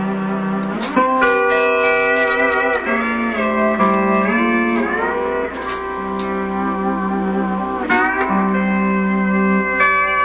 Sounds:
slide guitar
music

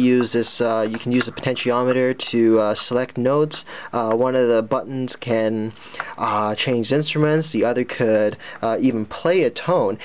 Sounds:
speech

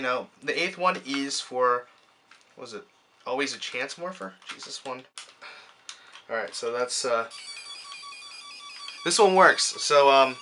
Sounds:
speech
inside a small room

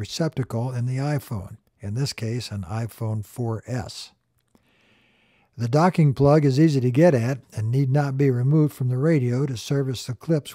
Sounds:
speech

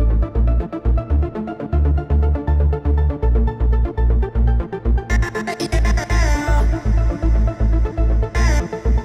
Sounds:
music
techno

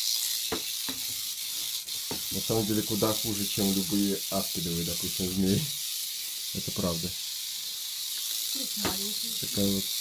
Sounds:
snake rattling

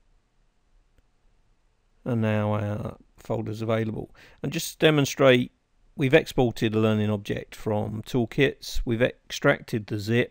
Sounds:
speech

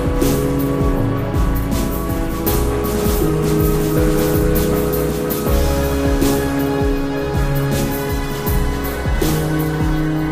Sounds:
music
video game music

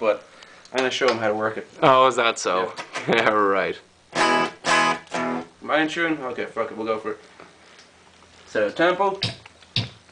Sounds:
speech
music

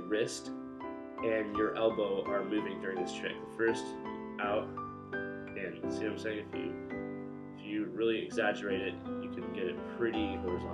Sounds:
musical instrument

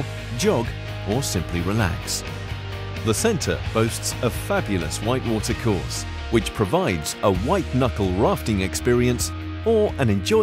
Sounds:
music
speech

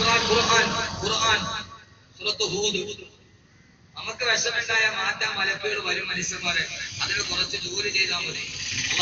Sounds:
speech
male speech
monologue

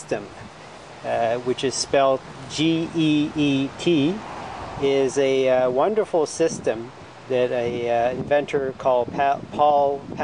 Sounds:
speech

